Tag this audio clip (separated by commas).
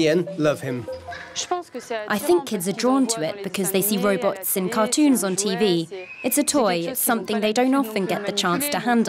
Speech